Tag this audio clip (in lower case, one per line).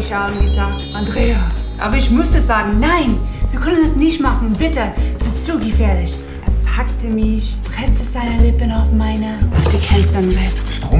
speech
music